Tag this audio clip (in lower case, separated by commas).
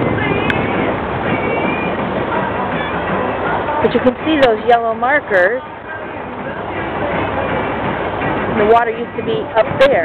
speech, music